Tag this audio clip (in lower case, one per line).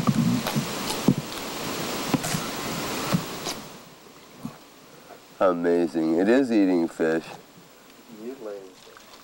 sailing ship
speech